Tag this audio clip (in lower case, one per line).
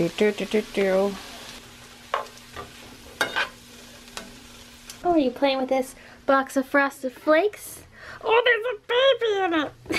frying (food)
stir